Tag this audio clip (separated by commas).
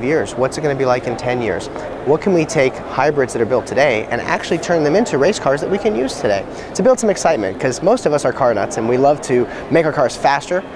Speech